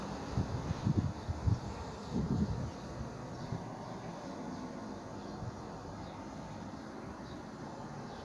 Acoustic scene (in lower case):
park